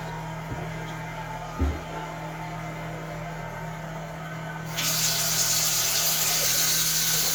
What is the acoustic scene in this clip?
restroom